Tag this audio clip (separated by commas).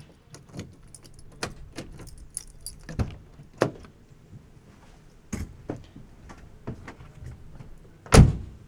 Vehicle, Domestic sounds, Car, Slam, Door, Motor vehicle (road)